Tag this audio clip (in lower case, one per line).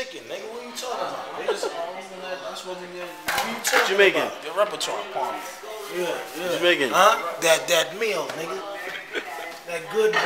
speech